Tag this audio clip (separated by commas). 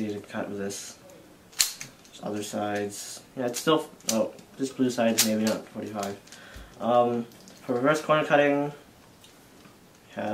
Speech, inside a small room